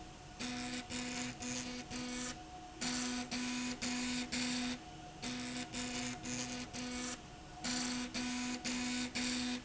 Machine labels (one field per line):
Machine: slide rail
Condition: abnormal